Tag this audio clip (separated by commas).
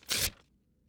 Tearing